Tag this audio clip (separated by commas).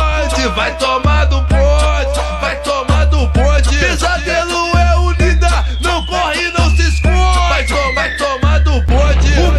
Music